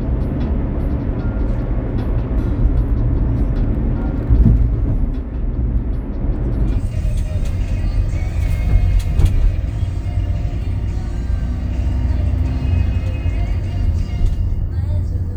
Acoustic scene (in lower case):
car